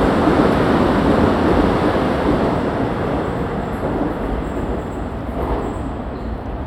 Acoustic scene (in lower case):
subway station